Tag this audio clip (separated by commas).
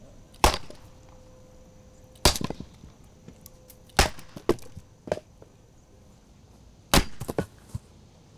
Wood